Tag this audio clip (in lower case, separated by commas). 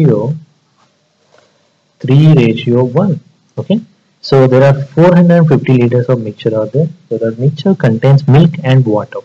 speech